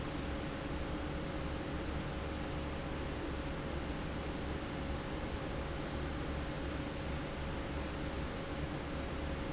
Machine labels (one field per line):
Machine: fan